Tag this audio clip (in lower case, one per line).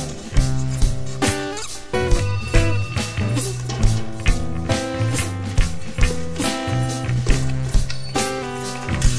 music